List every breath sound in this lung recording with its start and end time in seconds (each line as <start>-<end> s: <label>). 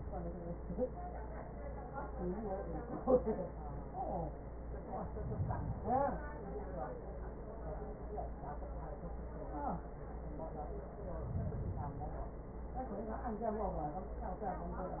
4.89-6.39 s: inhalation
10.88-12.38 s: inhalation